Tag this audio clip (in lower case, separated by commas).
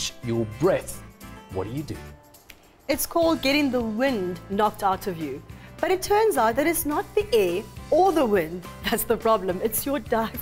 music, speech